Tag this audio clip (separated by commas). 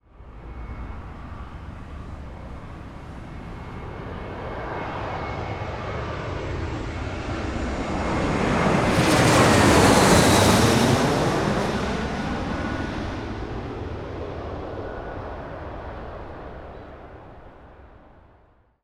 Aircraft, Vehicle, Fixed-wing aircraft